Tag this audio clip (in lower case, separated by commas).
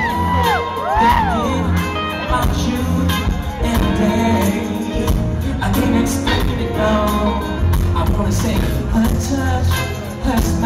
music, blues